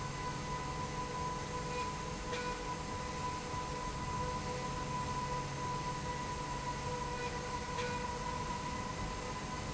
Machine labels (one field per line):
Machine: slide rail